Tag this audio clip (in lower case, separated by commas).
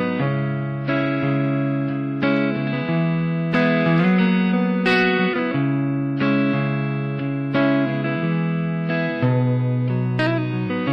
guitar, music